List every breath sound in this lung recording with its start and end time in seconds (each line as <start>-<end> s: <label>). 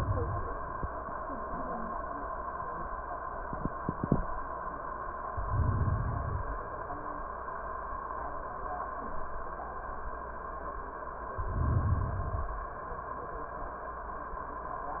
5.25-6.66 s: inhalation
11.34-12.24 s: inhalation
12.21-13.11 s: exhalation